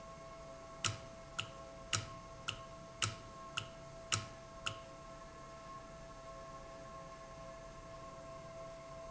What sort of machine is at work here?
valve